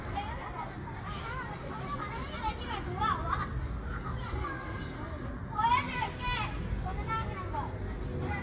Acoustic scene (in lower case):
park